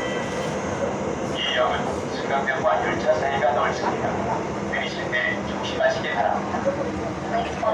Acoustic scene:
subway train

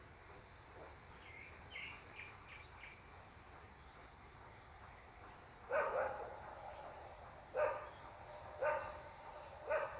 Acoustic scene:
park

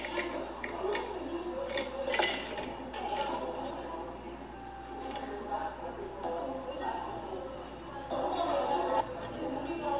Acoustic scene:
cafe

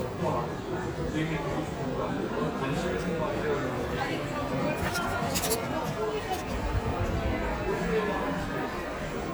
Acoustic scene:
crowded indoor space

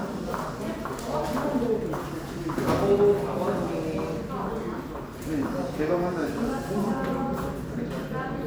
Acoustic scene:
crowded indoor space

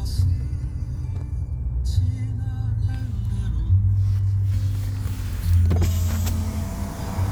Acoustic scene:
car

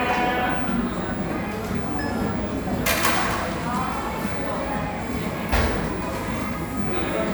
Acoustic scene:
cafe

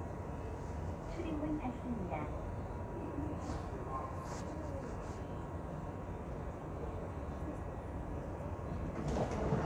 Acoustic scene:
subway train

